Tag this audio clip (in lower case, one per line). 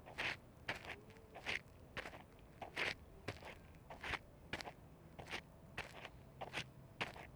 footsteps